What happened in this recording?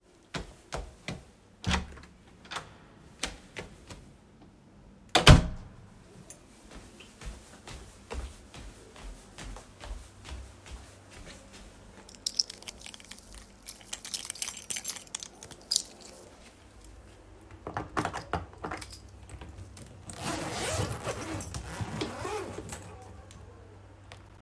I went to room, opened the door, went to suitcase, took keys to open suitcase and opened it